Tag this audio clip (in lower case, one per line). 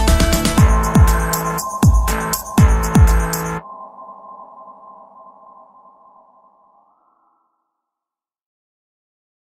drum machine
music